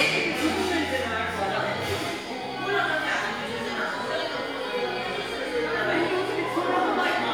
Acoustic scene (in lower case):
crowded indoor space